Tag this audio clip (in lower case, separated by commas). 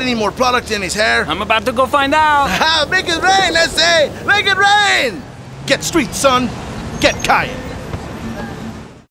speech, bird, outside, urban or man-made